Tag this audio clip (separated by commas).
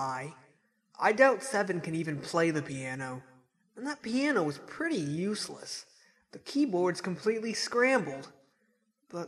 Speech